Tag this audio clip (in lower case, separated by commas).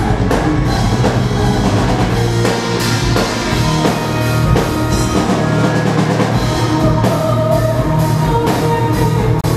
music